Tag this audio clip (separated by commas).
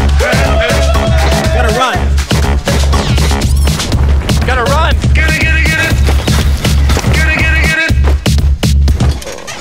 Run, outside, urban or man-made, Speech, Music